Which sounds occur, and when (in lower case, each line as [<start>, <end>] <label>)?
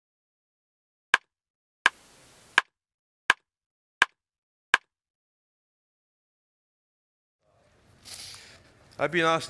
[1.10, 1.18] tick
[1.83, 1.92] tick
[1.84, 2.71] background noise
[2.52, 2.62] tick
[3.26, 3.35] tick
[3.98, 4.07] tick
[4.72, 4.80] tick
[7.38, 7.73] man speaking
[7.39, 9.45] background noise
[7.98, 8.57] surface contact
[8.02, 8.98] speech
[8.30, 8.41] tick
[8.86, 8.96] tick
[8.89, 9.45] man speaking